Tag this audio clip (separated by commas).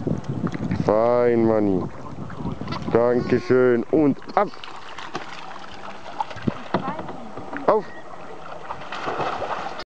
Speech